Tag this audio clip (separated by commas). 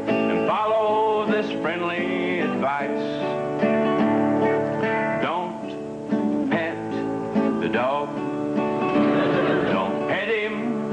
Music